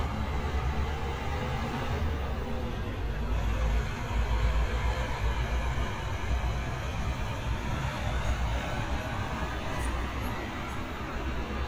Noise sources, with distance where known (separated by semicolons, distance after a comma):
medium-sounding engine, near